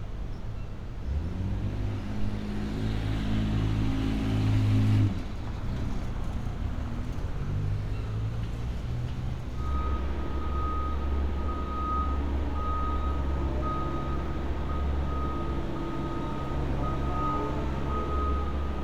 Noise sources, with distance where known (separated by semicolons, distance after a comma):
engine of unclear size